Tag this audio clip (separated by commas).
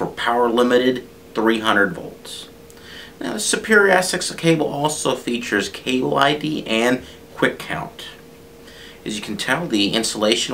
Speech